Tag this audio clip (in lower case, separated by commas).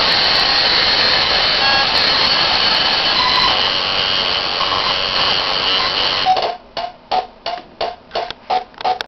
hum, mains hum